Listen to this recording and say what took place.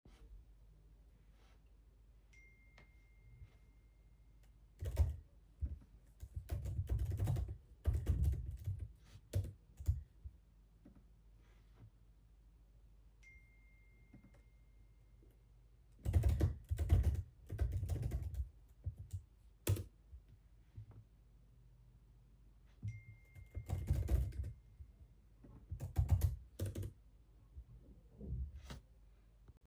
I immitated chatting by typing and recieving notifications